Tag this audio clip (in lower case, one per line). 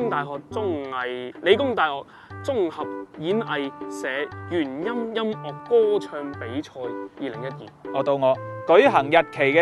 music
speech